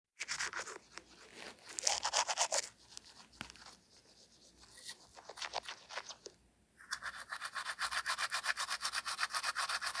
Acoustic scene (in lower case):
restroom